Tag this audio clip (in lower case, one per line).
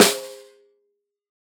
music
musical instrument
percussion
drum
snare drum